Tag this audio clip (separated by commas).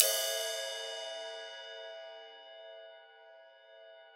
Musical instrument, Percussion, Cymbal, Crash cymbal, Music